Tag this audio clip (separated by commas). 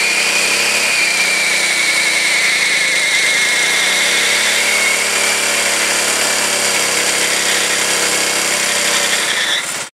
Vehicle, Car